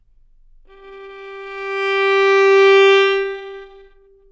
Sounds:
music, musical instrument, bowed string instrument

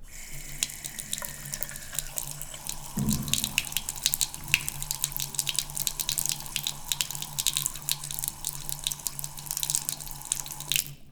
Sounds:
sink (filling or washing), domestic sounds

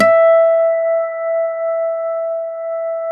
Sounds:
guitar, acoustic guitar, plucked string instrument, musical instrument, music

